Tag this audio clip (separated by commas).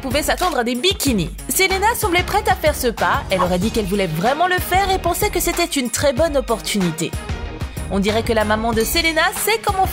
Speech, Music